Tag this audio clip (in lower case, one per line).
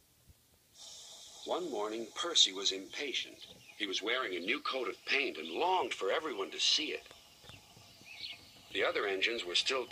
speech